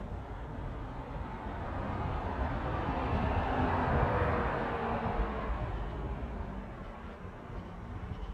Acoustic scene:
residential area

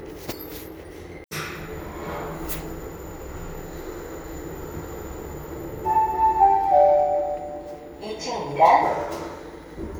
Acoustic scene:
elevator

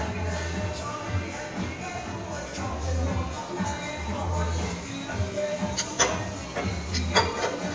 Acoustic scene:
restaurant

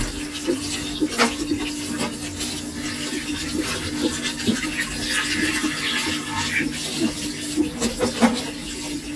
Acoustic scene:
kitchen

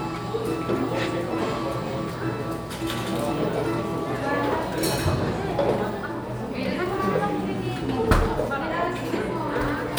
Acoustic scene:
cafe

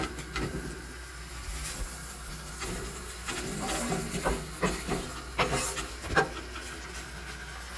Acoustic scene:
kitchen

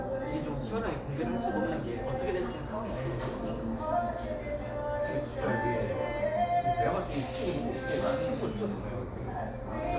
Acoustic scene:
cafe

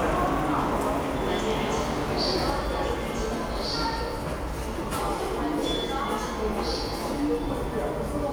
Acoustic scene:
subway station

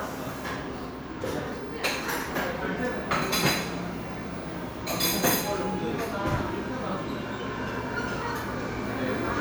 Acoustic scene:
cafe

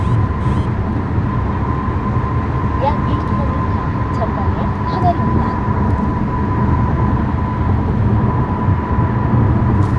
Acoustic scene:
car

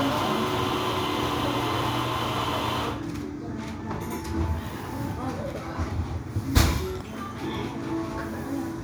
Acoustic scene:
cafe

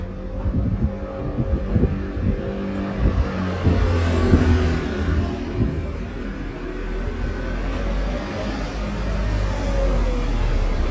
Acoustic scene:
residential area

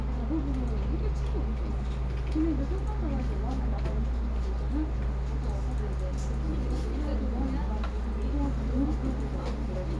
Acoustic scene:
crowded indoor space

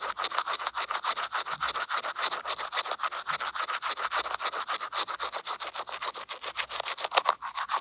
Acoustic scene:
restroom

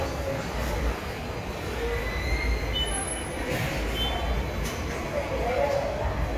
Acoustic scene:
subway station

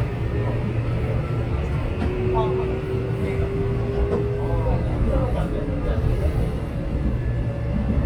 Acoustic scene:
subway train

